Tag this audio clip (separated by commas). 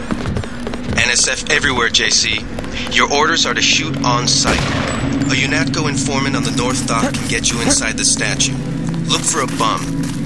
Speech